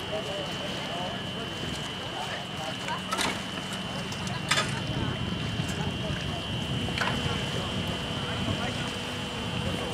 People talking with some kind of buzzing noise in the forefront